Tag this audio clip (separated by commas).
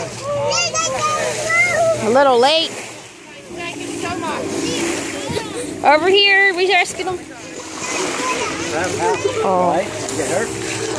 Vehicle, Boat, Ocean, splatter, Speech